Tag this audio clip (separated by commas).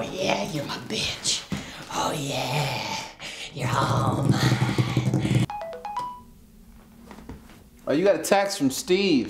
Speech